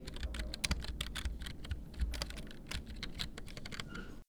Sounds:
domestic sounds
typing
computer keyboard

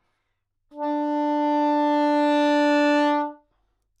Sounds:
music
woodwind instrument
musical instrument

